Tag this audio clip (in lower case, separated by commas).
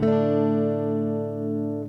plucked string instrument, music, strum, guitar, electric guitar, musical instrument